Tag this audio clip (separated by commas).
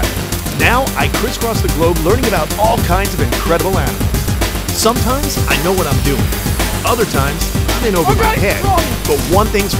Speech, Music